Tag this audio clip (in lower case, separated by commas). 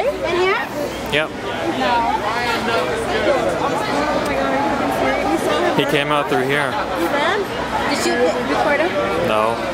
speech